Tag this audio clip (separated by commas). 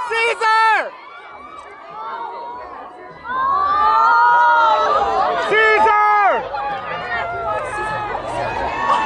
Speech